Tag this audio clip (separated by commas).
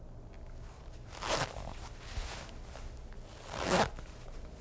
Domestic sounds, Zipper (clothing)